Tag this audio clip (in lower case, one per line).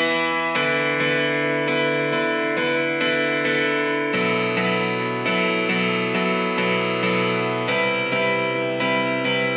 music
musical instrument